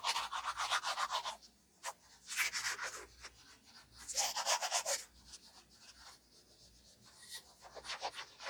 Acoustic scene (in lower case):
restroom